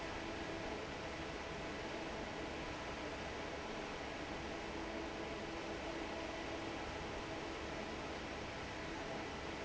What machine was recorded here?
fan